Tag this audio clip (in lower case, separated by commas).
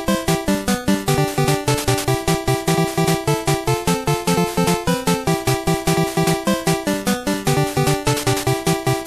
music, happy music, jazz